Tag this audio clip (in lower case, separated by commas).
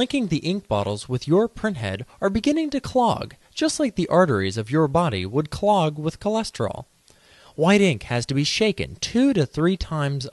speech